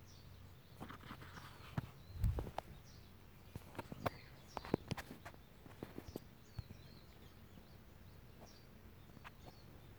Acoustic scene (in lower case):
park